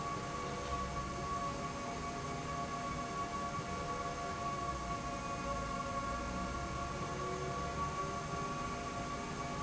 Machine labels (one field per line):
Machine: slide rail